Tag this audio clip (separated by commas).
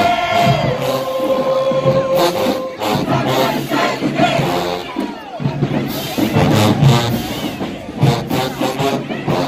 people marching